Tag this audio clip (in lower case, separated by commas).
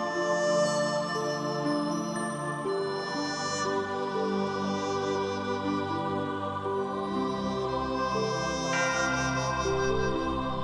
music